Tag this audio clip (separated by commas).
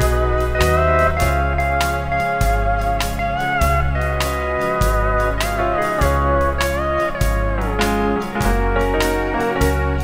playing steel guitar